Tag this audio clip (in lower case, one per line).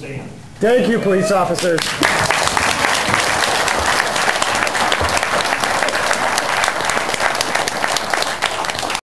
speech